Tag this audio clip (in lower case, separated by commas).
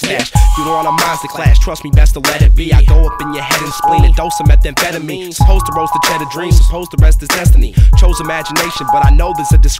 disco, soundtrack music, music